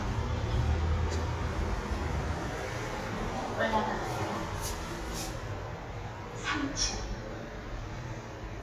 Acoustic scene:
elevator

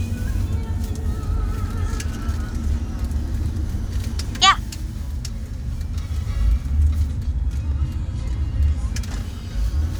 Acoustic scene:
car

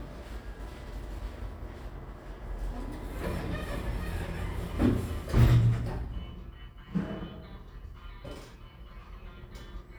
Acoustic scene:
elevator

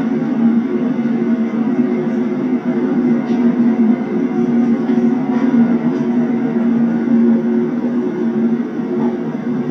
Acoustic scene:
subway train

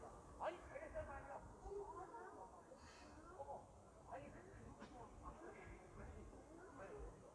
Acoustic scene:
park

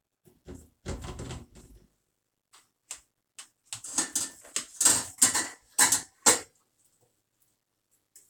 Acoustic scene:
kitchen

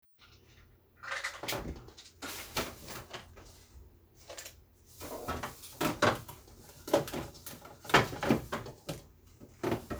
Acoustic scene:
kitchen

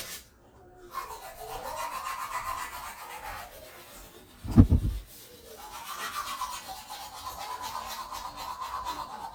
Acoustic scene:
restroom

